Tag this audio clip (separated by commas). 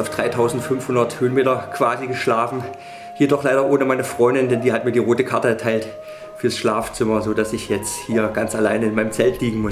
Music, Speech